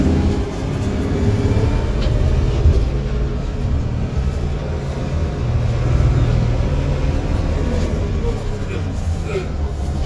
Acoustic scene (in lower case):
bus